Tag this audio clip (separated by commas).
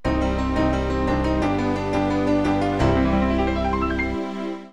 Music, Musical instrument